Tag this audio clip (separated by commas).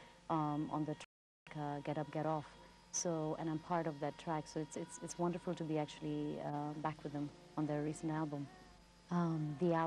Speech